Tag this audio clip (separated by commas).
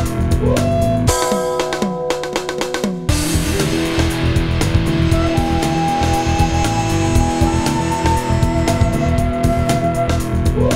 Video game music, Music